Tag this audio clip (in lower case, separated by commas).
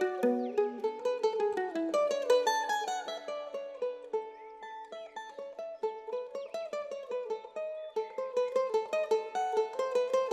music, mandolin